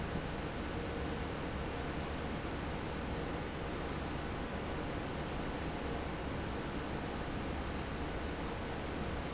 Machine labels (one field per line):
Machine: fan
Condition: normal